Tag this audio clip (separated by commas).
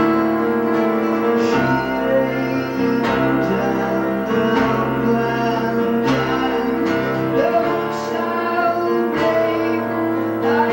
Music